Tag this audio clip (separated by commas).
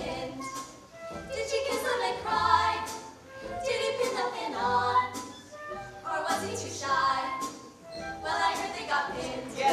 Music